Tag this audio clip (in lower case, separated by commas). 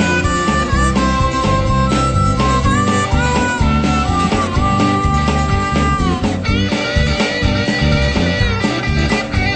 music, dance music